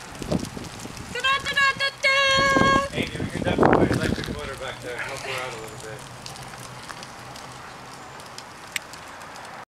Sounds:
Speech, Vehicle

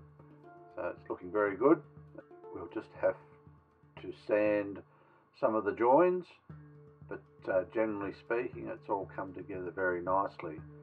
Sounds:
Music, Speech

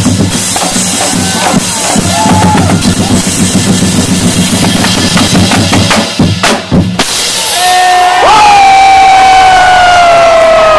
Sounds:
people marching

